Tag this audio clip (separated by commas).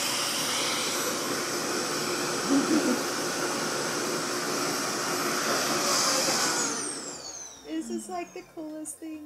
hair dryer drying